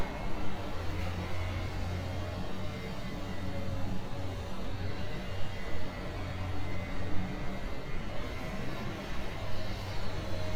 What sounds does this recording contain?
small-sounding engine